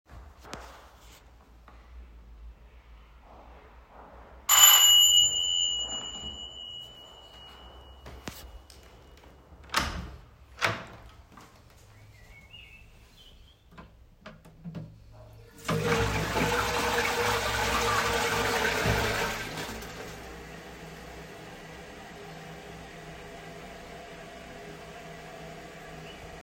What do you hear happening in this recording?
Someone walked along the hallway. Then the doorbell rang at my apartment. I opened the bathroom door. I could hear birdsong from a music box. I then flushed something down the toilet.